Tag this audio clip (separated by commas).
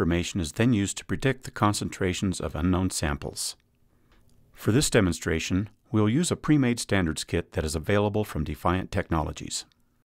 Speech